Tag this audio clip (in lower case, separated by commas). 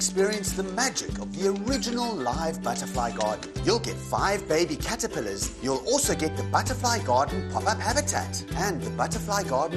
music, speech